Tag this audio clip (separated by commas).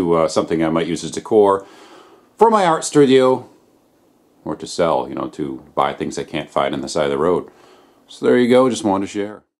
Speech